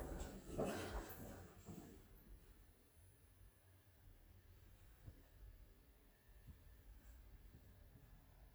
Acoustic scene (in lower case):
elevator